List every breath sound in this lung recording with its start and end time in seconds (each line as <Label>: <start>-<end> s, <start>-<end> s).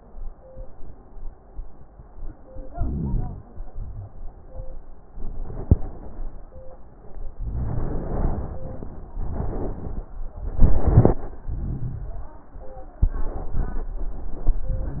Inhalation: 2.70-3.42 s, 7.38-8.61 s, 11.50-12.41 s
Exhalation: 3.54-4.13 s
Crackles: 7.38-8.61 s, 11.50-12.41 s